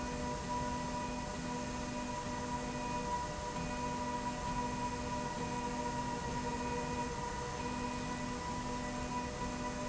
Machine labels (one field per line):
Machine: slide rail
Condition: normal